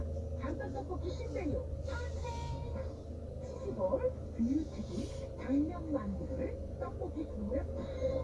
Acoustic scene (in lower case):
car